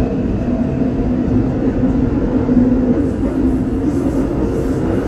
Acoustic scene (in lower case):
subway train